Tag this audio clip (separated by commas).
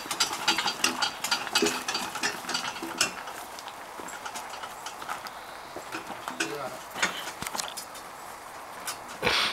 Speech